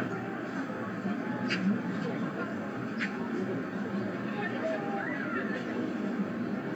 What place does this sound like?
residential area